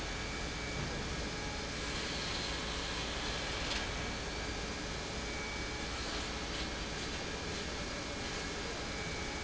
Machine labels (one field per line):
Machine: pump